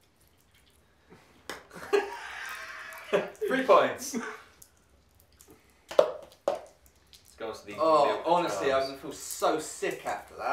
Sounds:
speech, inside a small room

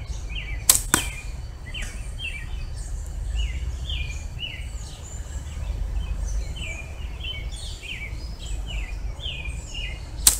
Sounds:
environmental noise, outside, rural or natural

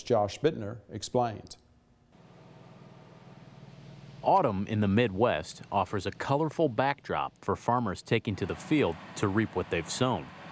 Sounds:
speech

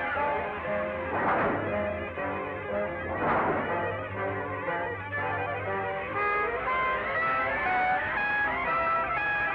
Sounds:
music

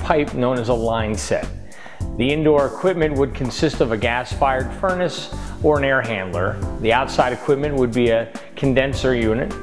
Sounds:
speech, music

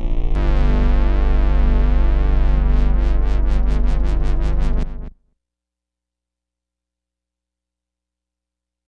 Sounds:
music, sound effect, reverberation

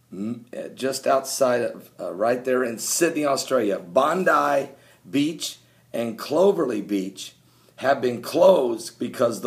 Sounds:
speech

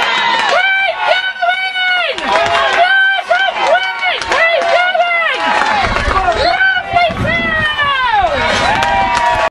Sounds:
speech

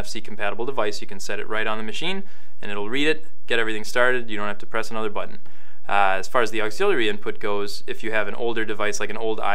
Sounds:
speech

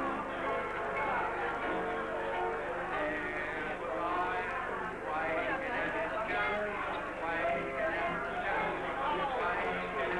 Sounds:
speech, music

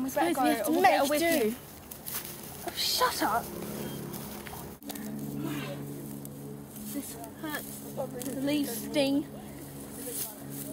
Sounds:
speech, outside, rural or natural

